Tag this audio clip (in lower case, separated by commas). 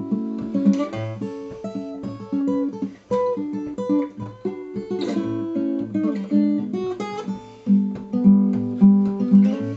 guitar, acoustic guitar, strum, plucked string instrument, music, musical instrument